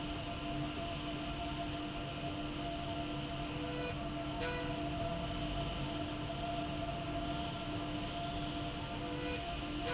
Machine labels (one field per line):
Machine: slide rail